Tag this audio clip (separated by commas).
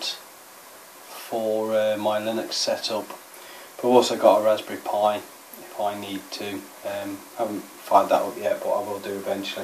Speech